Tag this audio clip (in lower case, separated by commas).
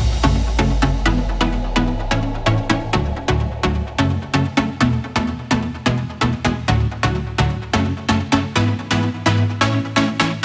music